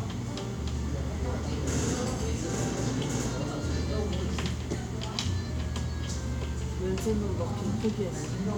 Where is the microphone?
in a cafe